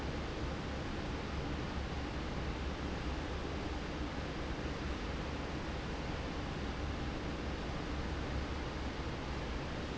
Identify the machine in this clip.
fan